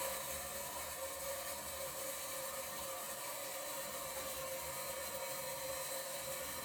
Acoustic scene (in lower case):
restroom